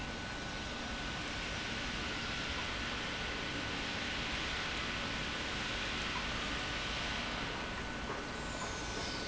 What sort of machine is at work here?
pump